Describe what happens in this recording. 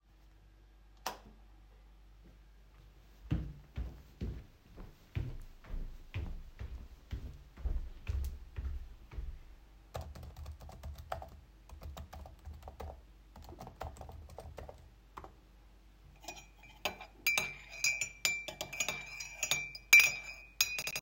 I turned on the light switch. Then I went to the desk and started typing text on keyboard. Finally I stirred the tea in a mug with a spoon